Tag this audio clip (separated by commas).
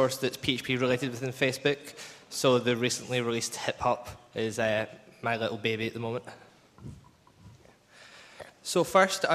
Speech